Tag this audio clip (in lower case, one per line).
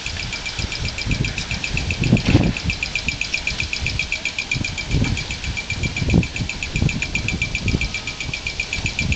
wind noise (microphone)